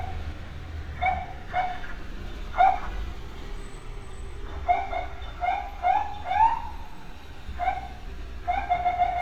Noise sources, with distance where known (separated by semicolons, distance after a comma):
unidentified alert signal, near